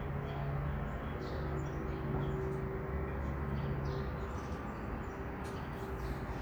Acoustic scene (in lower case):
street